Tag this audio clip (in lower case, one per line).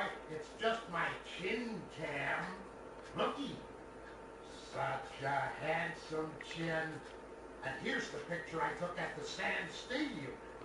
speech